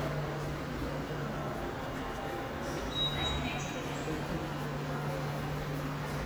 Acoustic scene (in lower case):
subway station